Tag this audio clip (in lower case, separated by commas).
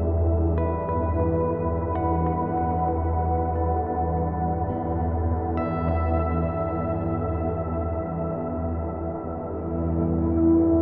reverberation, music, ambient music